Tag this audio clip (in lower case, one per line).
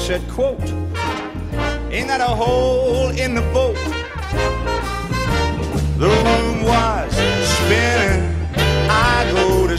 music
swing music